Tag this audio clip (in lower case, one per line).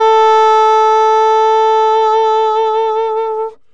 musical instrument
woodwind instrument
music